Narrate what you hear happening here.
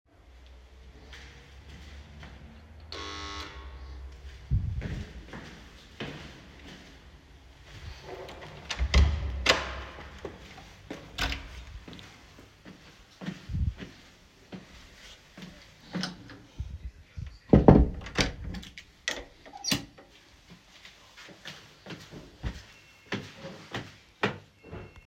I approached the front door while carrying my phone. I rang the doorbell once, then opened the door and walked inside before closing it behind me.